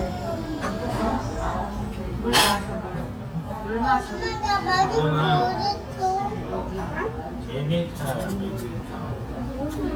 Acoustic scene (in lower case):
restaurant